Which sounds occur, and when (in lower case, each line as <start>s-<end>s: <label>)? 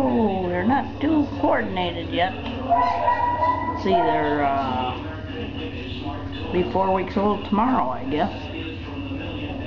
0.0s-2.3s: female speech
0.0s-9.6s: mechanisms
2.5s-2.5s: tick
2.7s-4.4s: bark
3.8s-5.0s: female speech
5.0s-9.6s: man speaking
6.6s-8.5s: female speech